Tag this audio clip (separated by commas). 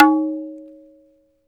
Tabla, Musical instrument, Music, Percussion, Drum